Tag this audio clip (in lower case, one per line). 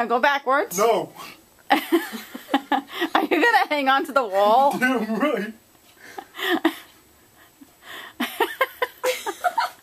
speech
inside a small room